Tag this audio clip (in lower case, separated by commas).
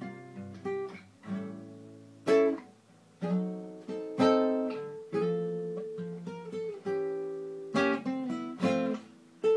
plucked string instrument, strum, guitar, music, musical instrument